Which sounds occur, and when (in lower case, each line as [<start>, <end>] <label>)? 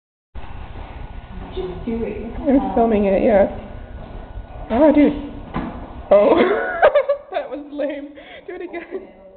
[0.32, 9.35] background noise
[1.50, 3.56] woman speaking
[3.90, 4.62] generic impact sounds
[4.67, 5.36] woman speaking
[5.47, 5.85] generic impact sounds
[6.07, 6.34] woman speaking
[6.30, 7.16] laughter
[7.30, 9.35] woman speaking